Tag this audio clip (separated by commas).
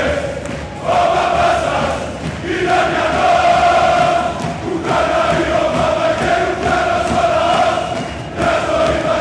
singing choir